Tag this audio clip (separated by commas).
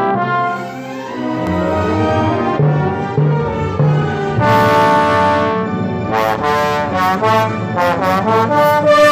playing trombone